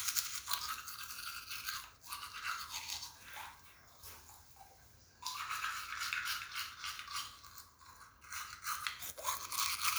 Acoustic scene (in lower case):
restroom